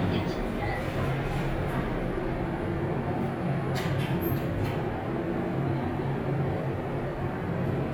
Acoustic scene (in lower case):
elevator